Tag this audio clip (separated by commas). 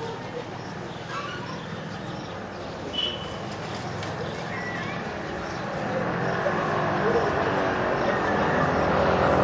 Race car, Speech